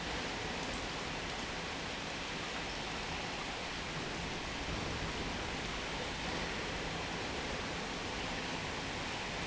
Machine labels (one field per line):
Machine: pump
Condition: normal